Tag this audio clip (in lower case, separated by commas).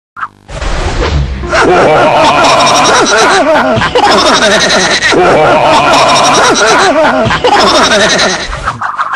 music